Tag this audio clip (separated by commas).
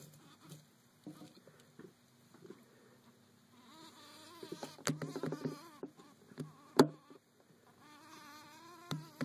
Fly, mouse pattering, Insect, Patter